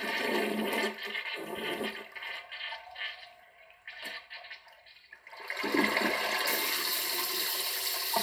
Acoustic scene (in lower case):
restroom